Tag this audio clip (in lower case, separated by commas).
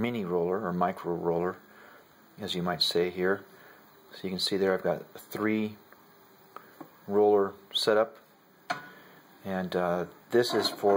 speech